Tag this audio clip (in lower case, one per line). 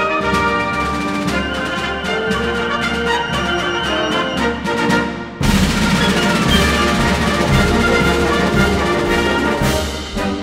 playing bugle